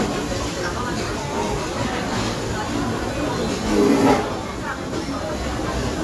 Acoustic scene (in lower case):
restaurant